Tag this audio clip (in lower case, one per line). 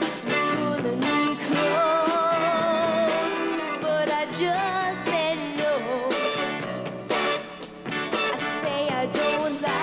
music